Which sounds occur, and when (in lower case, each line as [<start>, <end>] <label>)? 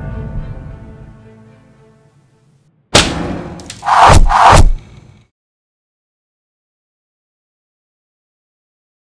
[0.00, 2.87] music
[2.90, 3.37] sound effect
[3.53, 3.76] generic impact sounds
[3.76, 5.25] sound effect